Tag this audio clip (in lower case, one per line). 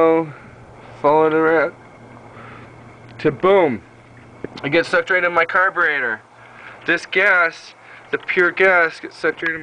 speech